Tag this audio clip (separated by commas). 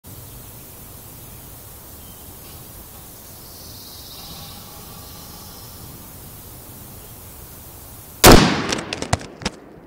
Firecracker